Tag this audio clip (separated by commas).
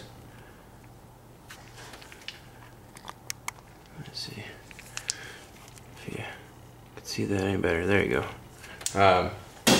Speech